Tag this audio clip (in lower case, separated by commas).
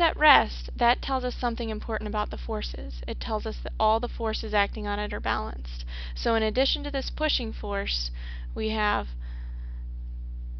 speech